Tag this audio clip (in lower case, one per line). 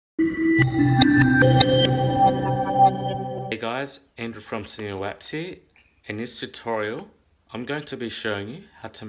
speech
music